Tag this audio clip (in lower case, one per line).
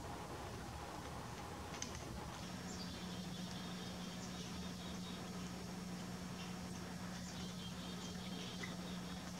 black capped chickadee calling